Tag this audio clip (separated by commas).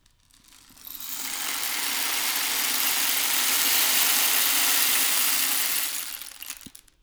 Music, Rattle (instrument), Musical instrument, Percussion